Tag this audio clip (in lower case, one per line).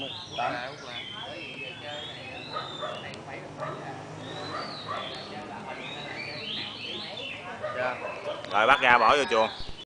coo
animal
bird
speech